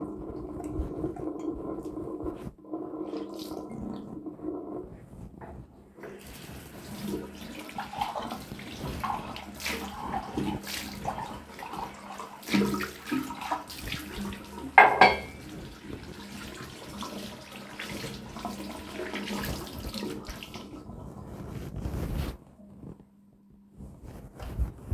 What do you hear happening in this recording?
I had the water running and cleaned my mug and rinsed it with the water. Then I dried my hands with a towel.